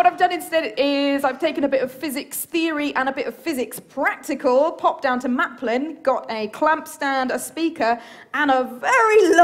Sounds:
Speech

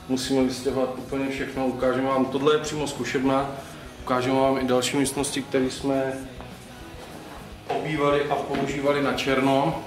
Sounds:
Music, Speech, inside a large room or hall

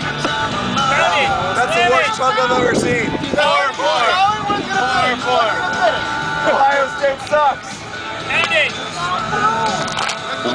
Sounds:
Music, Speech

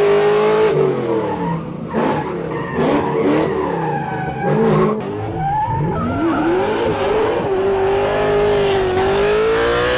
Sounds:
Skidding, Vehicle, Car, Race car

